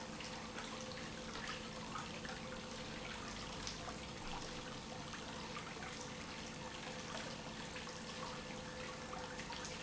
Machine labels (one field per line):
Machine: pump